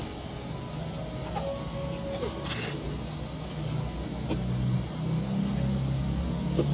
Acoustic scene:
cafe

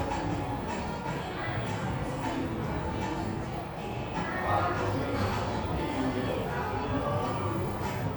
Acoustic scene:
cafe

